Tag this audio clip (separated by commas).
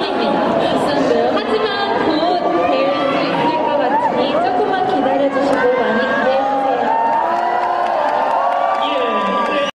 Speech